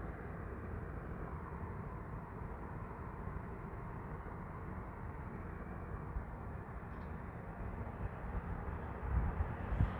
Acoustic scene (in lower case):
street